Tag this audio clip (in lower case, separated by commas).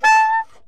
musical instrument, wind instrument, music